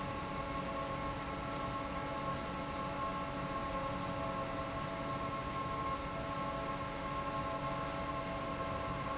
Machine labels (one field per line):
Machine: fan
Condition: normal